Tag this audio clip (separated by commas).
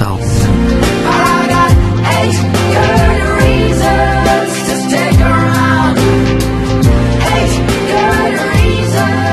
Music, Speech, Happy music